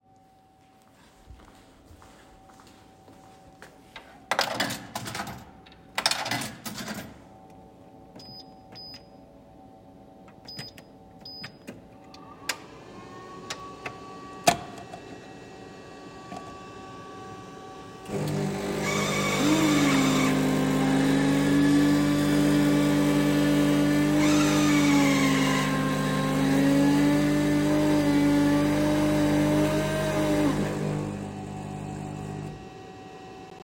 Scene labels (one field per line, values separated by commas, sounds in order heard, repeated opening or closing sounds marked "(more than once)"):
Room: dining room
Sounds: footsteps, coffee machine